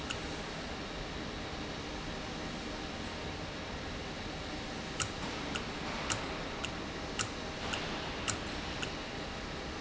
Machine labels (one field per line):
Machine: valve